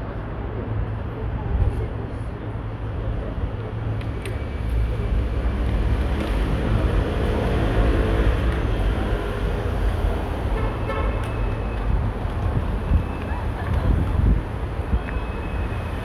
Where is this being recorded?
in a residential area